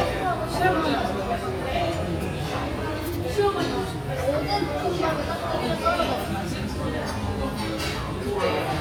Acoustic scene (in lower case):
restaurant